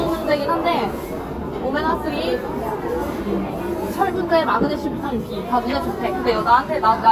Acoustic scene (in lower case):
crowded indoor space